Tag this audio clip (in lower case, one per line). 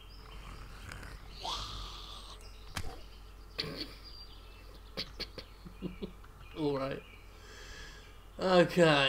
outside, rural or natural
speech